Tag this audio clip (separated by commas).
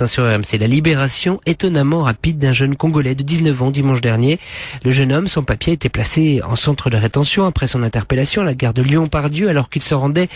Speech